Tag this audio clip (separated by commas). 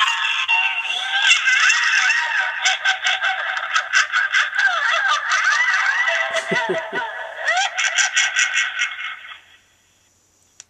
inside a small room